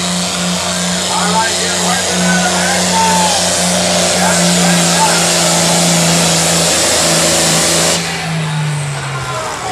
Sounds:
speech

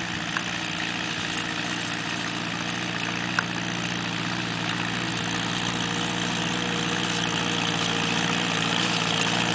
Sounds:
tractor digging

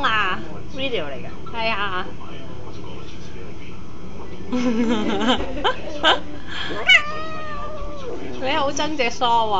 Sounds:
cat
animal
speech

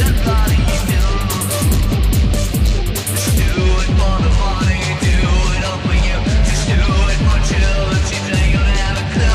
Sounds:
music

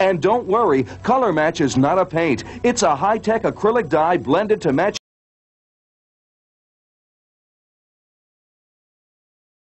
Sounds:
speech

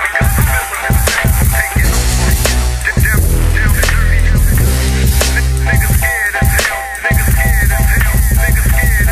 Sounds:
hip hop music
music

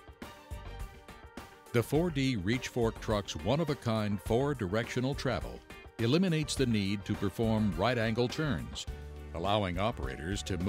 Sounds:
speech
music

